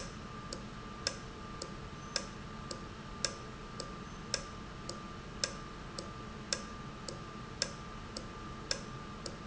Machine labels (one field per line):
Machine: valve